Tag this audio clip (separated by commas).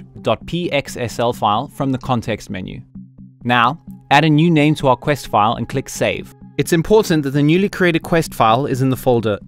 Music, Speech